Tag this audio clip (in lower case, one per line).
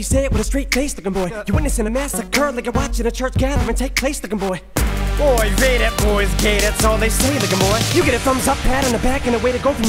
rapping